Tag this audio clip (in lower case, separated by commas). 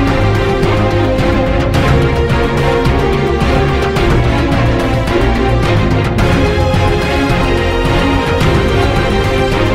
music